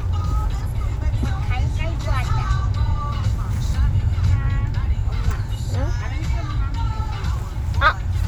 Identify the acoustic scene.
car